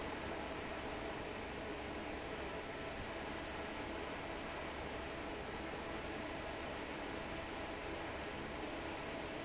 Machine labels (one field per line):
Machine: fan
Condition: normal